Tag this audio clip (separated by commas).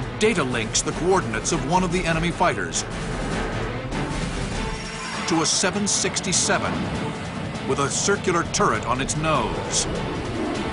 Music, Speech